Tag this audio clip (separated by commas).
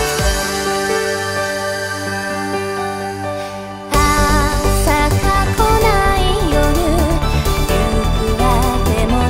Music, Jazz